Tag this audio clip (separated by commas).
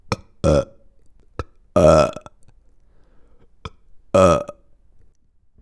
eructation